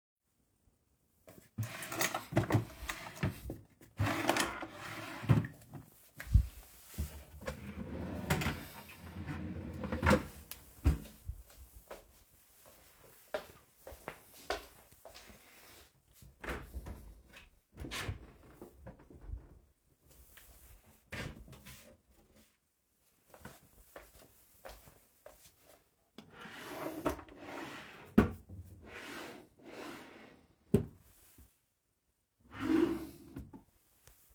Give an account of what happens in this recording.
I open diffrent drawers. Walk around in my room. Open the wadrobe and other drawers. Walk around. Open a few more drawers.